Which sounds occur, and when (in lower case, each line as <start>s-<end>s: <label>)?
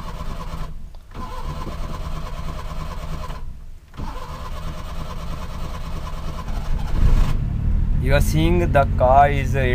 0.0s-9.7s: background noise
0.0s-0.5s: engine starting
0.9s-3.6s: engine starting
4.1s-6.5s: engine starting
6.9s-9.7s: engine starting